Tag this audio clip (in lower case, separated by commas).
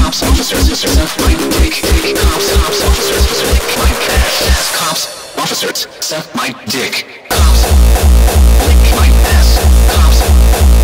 music, speech